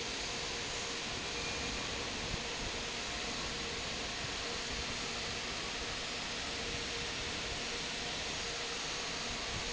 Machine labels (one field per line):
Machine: fan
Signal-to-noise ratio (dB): -6 dB